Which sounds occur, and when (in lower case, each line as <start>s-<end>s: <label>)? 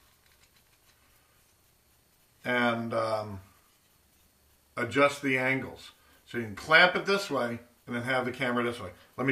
0.0s-0.9s: generic impact sounds
0.0s-9.3s: background noise
1.0s-1.5s: breathing
2.4s-3.4s: man speaking
3.7s-3.9s: generic impact sounds
4.0s-4.3s: generic impact sounds
4.7s-5.9s: man speaking
5.9s-6.2s: breathing
6.2s-7.5s: man speaking
7.8s-8.9s: man speaking
9.2s-9.3s: man speaking